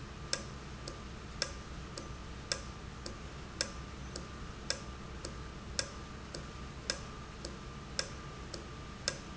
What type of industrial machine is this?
valve